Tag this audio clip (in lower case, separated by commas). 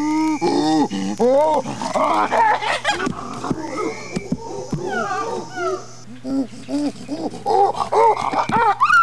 wild animals, animal